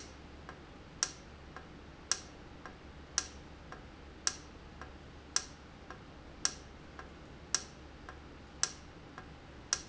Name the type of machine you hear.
valve